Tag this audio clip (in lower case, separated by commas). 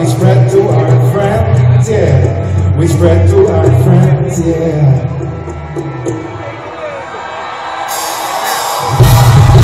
music, speech